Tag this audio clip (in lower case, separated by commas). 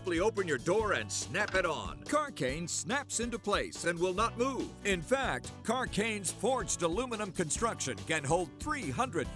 speech, music